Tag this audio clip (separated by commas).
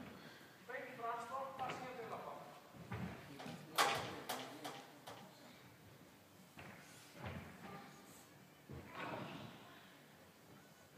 Speech